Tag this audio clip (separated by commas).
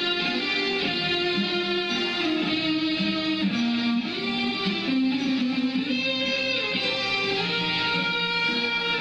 Electric guitar, Music, Guitar, Musical instrument